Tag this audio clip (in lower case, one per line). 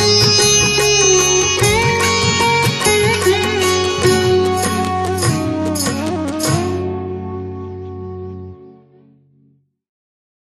playing sitar